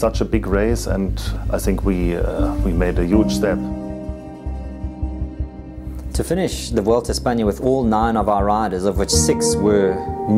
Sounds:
Music, Speech

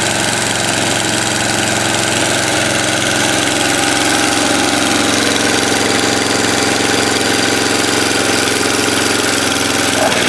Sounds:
Lawn mower, lawn mowing

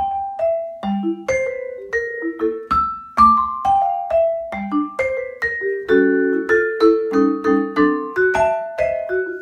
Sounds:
playing vibraphone

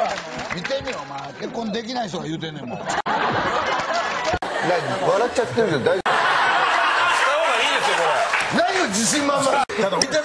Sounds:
Speech, Laughter

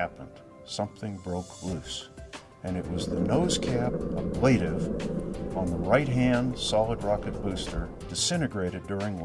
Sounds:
Music, Speech

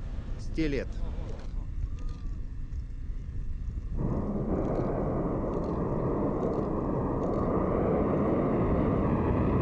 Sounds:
missile launch

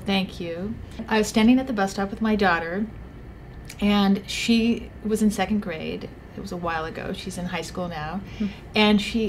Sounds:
Speech

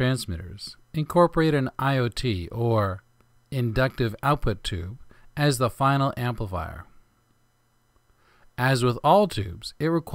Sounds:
Speech

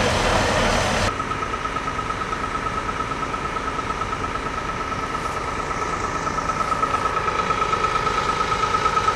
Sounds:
Vehicle

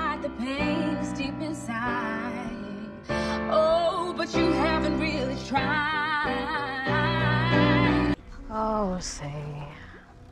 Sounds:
Female singing, Speech, Music

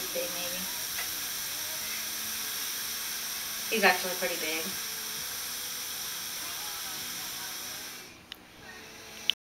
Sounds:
Speech

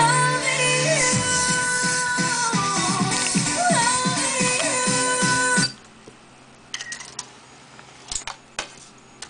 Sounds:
inside a small room, Music

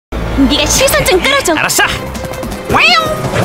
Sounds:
Music, Speech

